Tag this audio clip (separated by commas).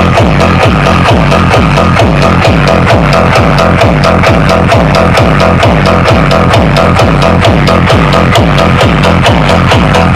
Music